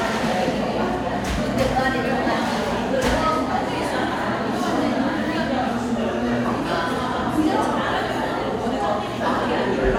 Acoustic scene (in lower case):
crowded indoor space